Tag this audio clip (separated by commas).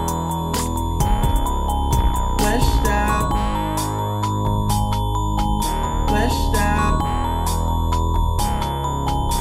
Music